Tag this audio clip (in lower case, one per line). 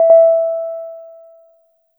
keyboard (musical)
piano
musical instrument
music